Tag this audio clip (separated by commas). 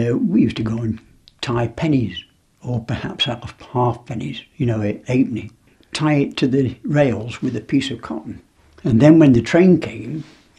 Speech